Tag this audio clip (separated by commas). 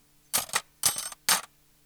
home sounds, silverware